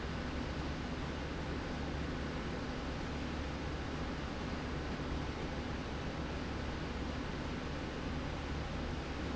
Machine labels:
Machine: slide rail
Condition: normal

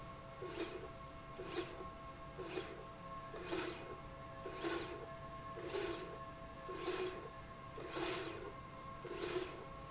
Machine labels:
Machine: slide rail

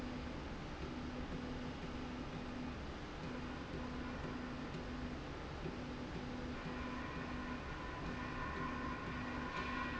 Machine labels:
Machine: slide rail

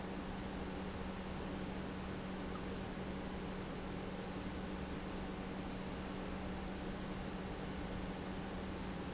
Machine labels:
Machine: pump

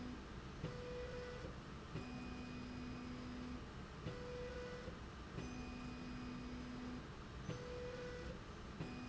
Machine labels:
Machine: slide rail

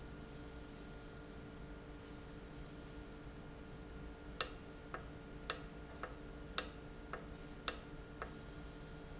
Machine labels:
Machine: valve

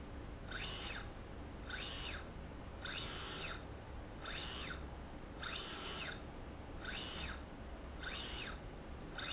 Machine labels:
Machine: slide rail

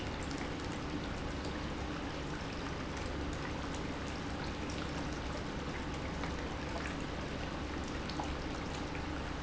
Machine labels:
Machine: pump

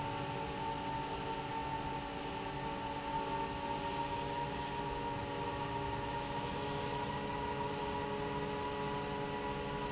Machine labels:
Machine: fan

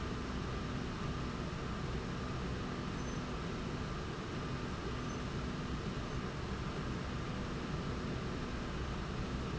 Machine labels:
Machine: slide rail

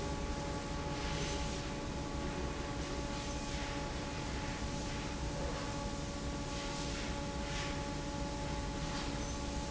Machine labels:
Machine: fan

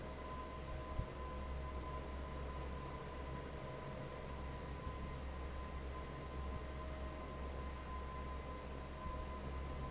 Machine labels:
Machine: fan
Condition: normal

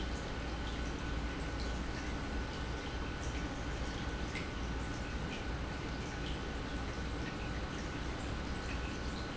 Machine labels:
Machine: pump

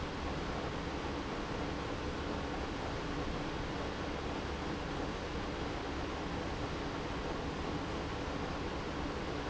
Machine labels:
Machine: pump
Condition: abnormal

